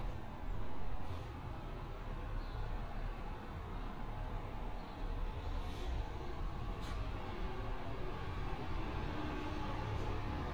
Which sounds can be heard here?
background noise